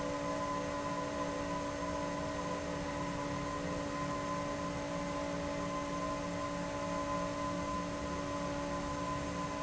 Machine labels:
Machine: fan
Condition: abnormal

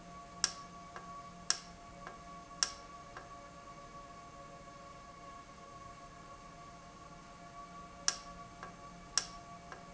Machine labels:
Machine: valve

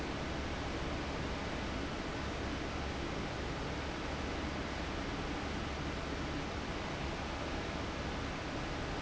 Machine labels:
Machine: fan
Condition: abnormal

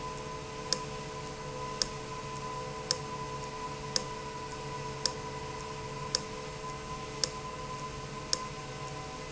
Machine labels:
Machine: valve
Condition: abnormal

